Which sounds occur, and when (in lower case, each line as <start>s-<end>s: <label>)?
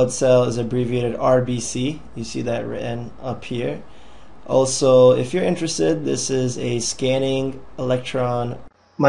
0.0s-2.0s: male speech
0.0s-9.0s: mechanisms
2.1s-3.1s: male speech
3.2s-3.9s: male speech
3.9s-4.3s: breathing
4.5s-7.6s: male speech
7.8s-8.6s: male speech